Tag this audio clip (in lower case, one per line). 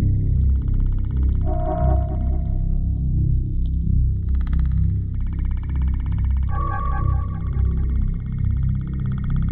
electronic music
music
synthesizer
ambient music